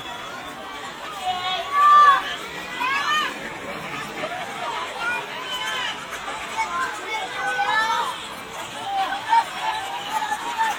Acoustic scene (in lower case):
park